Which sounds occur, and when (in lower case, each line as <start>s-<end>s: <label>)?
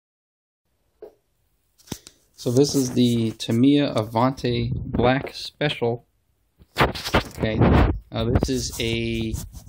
0.7s-9.6s: background noise
1.0s-1.1s: tick
1.8s-2.1s: generic impact sounds
1.8s-2.2s: breathing
1.9s-1.9s: tick
2.4s-4.7s: man speaking
3.3s-3.6s: surface contact
3.9s-4.4s: surface contact
4.2s-5.2s: wind noise (microphone)
4.9s-6.0s: man speaking
6.6s-7.4s: generic impact sounds
7.4s-7.6s: man speaking
7.5s-8.1s: wind noise (microphone)
8.1s-9.4s: man speaking
8.7s-9.1s: surface contact
9.3s-9.6s: wind noise (microphone)
9.4s-9.6s: surface contact